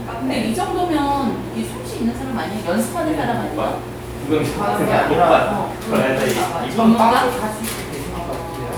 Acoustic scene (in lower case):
crowded indoor space